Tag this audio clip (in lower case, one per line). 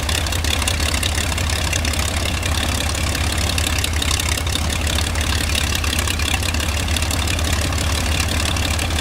aircraft
vehicle
idling